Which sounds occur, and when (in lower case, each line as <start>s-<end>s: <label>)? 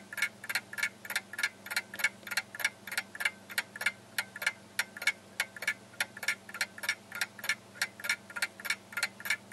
0.0s-9.5s: background noise
0.1s-0.3s: tick-tock
0.4s-0.6s: tick-tock
0.7s-0.9s: tick-tock
1.1s-1.2s: tick-tock
1.4s-1.5s: tick-tock
1.7s-1.8s: tick-tock
1.9s-2.1s: tick-tock
2.3s-2.4s: tick-tock
2.5s-2.7s: tick-tock
2.9s-3.0s: tick-tock
3.2s-3.3s: tick-tock
3.5s-3.6s: tick-tock
3.8s-3.9s: tick-tock
4.2s-4.3s: tick-tock
4.4s-4.5s: tick-tock
4.8s-4.8s: tick-tock
5.0s-5.1s: tick-tock
5.4s-5.4s: tick-tock
5.6s-5.7s: tick-tock
6.0s-6.0s: tick-tock
6.2s-6.3s: tick-tock
6.5s-6.7s: tick-tock
6.8s-6.9s: tick-tock
7.1s-7.2s: tick-tock
7.4s-7.5s: tick-tock
7.8s-7.9s: tick-tock
8.0s-8.1s: tick-tock
8.3s-8.4s: tick-tock
8.6s-8.8s: tick-tock
8.9s-9.1s: tick-tock
9.2s-9.4s: tick-tock